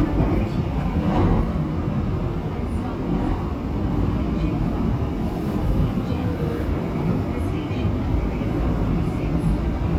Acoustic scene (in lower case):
subway train